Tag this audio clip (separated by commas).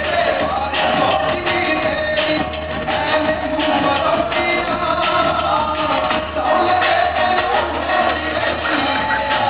inside a large room or hall, Music